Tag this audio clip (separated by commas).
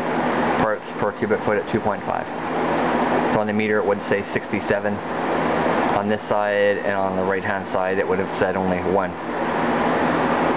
Speech